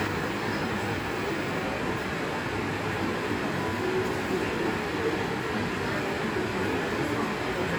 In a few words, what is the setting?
subway station